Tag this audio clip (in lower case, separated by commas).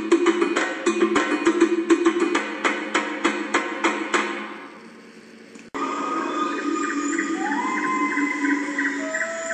music of africa, music